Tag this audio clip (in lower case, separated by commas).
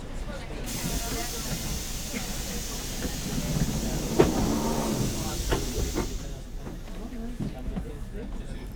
underground, vehicle, rail transport